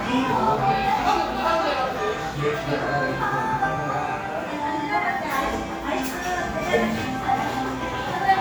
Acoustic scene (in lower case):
cafe